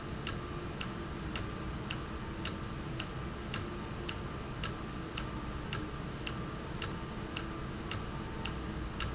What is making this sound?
valve